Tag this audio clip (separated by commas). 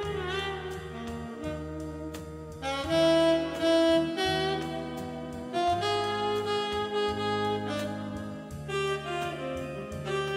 Saxophone, Music